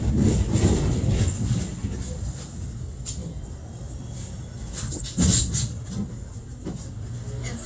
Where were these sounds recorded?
on a bus